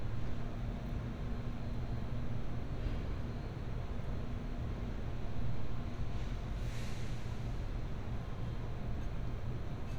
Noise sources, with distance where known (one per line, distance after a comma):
engine of unclear size